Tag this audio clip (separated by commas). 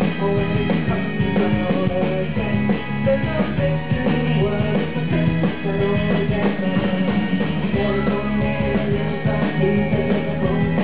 Music